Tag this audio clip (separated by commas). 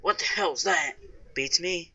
Conversation, Speech, Human voice